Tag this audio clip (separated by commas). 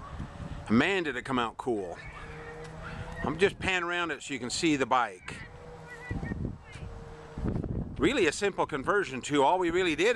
Speech